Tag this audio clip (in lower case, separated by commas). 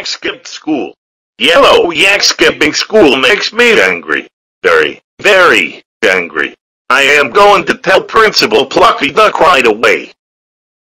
speech